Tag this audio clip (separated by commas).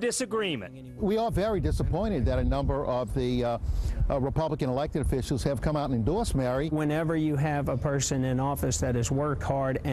Speech